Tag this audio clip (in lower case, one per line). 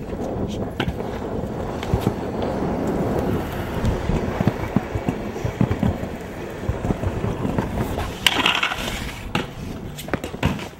outside, urban or man-made